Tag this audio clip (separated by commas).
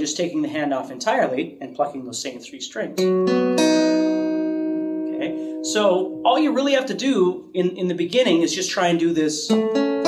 Speech, Plucked string instrument, Guitar, Music, Acoustic guitar, Musical instrument